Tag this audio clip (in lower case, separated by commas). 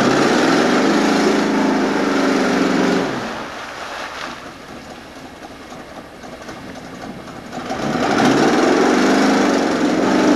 car, vehicle